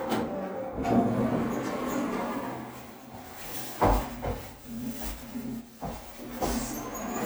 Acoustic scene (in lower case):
elevator